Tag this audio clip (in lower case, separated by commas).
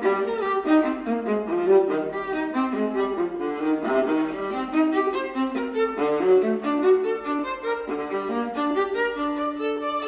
musical instrument, fiddle, bowed string instrument, music